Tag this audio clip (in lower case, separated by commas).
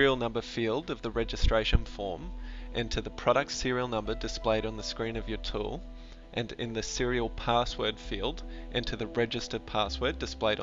music, speech